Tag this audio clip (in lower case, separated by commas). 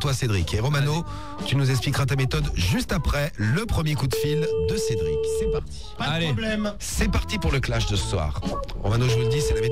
speech, music, radio